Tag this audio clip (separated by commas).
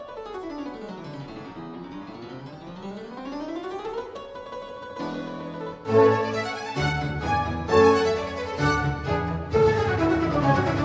Music, Piano, Harpsichord